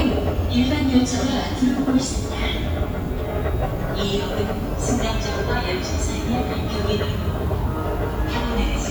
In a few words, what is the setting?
subway station